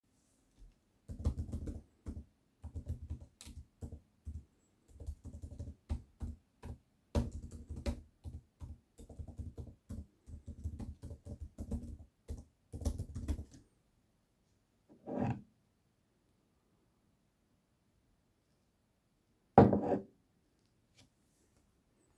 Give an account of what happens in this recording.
I was writing an essay on my laptop. I was doing it for a long time, so I went for a sip of water from my glass.